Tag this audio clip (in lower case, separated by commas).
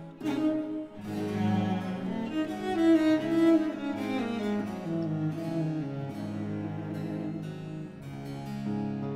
keyboard (musical), piano